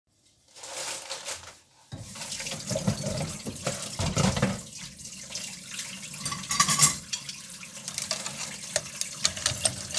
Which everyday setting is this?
kitchen